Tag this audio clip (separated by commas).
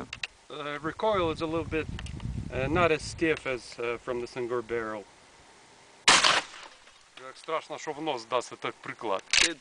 Speech